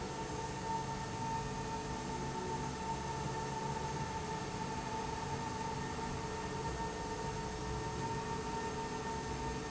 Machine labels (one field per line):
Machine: slide rail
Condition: normal